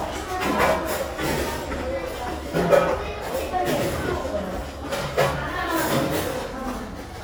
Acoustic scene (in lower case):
restaurant